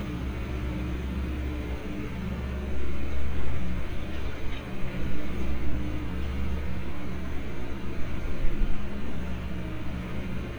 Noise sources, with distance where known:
large-sounding engine

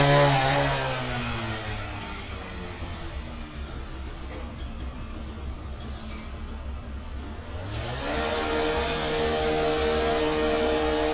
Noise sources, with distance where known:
engine of unclear size

